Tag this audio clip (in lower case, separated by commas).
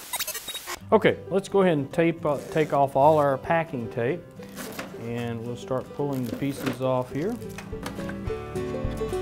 speech, music